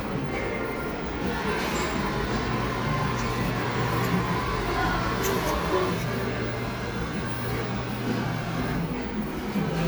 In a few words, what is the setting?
cafe